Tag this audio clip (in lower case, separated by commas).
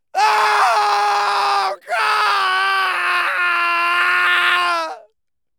screaming, human voice